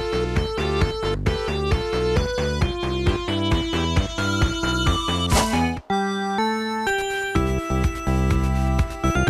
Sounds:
Music

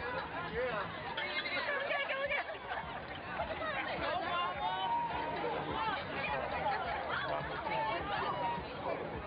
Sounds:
outside, urban or man-made, woman speaking, Speech

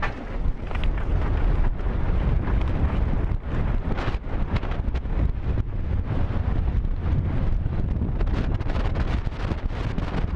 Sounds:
Horse, outside, rural or natural, Animal

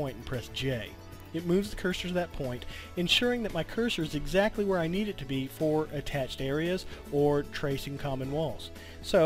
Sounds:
Speech, Music

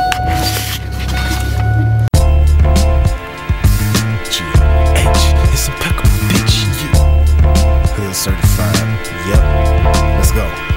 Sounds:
outside, urban or man-made, Music

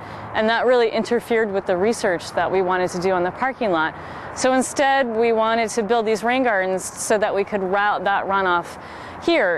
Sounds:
Speech

